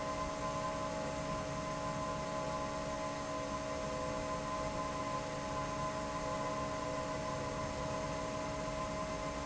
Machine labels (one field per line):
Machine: fan